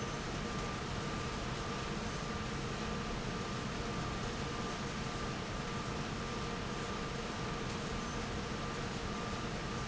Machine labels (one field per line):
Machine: fan